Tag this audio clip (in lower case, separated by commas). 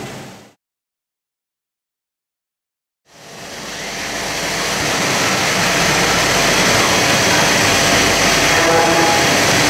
speech